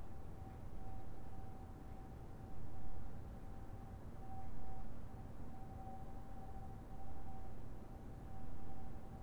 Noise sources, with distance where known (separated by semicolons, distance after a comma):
background noise